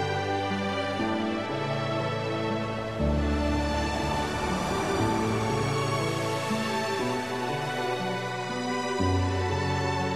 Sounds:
music
ocean

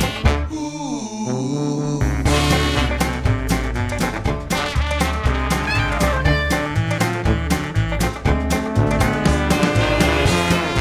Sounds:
orchestra
music

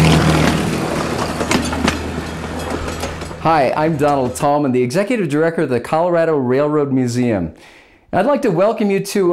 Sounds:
speech

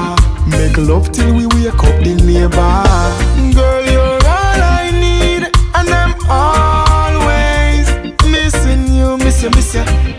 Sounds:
music

